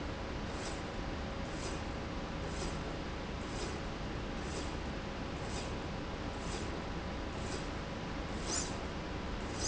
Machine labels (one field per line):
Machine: slide rail